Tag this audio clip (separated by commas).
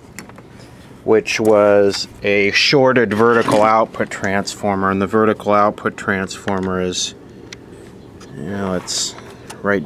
Speech